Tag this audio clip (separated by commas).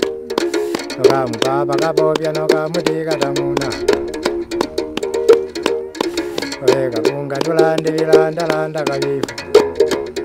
Music